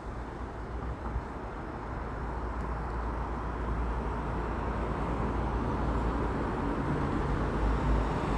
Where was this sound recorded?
on a street